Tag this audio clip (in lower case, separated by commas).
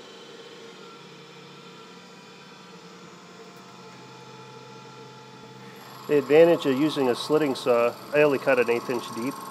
speech, tools